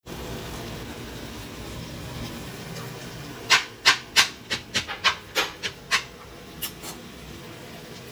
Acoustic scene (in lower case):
kitchen